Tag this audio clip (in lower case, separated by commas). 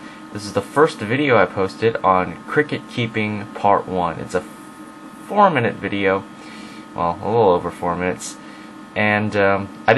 speech